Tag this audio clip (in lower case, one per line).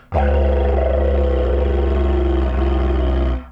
music
musical instrument